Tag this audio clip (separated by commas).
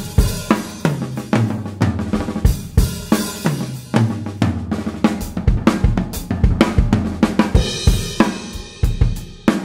Drum kit, Music, Musical instrument, Drum, Bass drum